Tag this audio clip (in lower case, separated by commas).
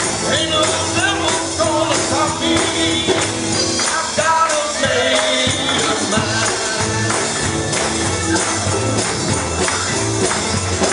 music, male singing